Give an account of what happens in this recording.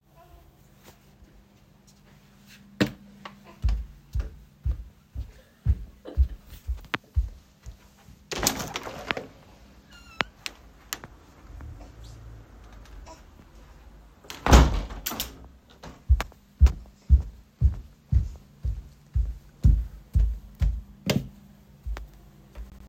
I walked to the window and opened and closed it. Then I walked over to turn on the lights using the light switch. In the background the baby was making noises throughout the scene.